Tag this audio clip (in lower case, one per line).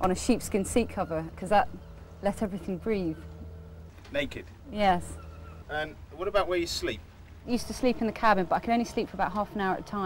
speech